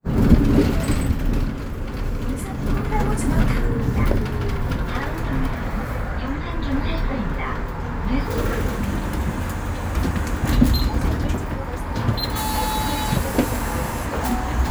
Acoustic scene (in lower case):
bus